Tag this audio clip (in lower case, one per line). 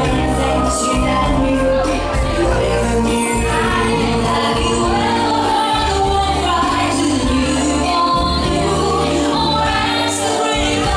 music